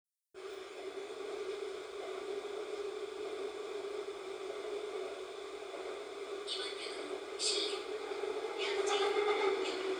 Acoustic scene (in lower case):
subway train